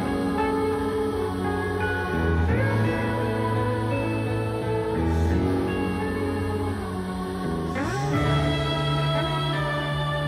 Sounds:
Music

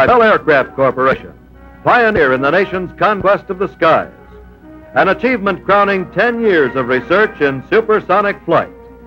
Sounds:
Speech, Music

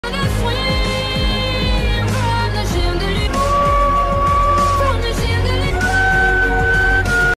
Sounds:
Dog, Music, Animal, Howl

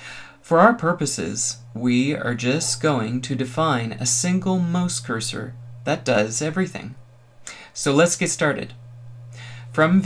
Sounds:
Speech

